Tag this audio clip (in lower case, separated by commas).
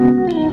piano, keyboard (musical), musical instrument, music